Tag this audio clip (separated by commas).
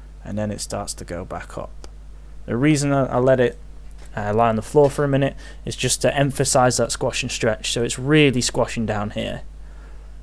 Speech